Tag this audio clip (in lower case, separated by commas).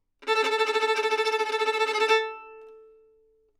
musical instrument, bowed string instrument, music